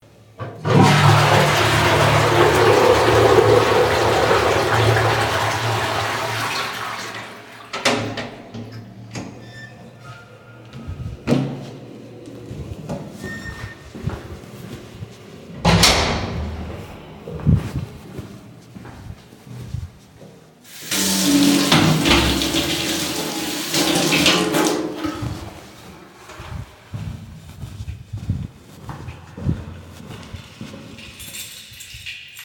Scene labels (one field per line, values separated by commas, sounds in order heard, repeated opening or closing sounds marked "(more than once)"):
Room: lavatory, hallway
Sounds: toilet flushing, door (more than once), footsteps, running water, keys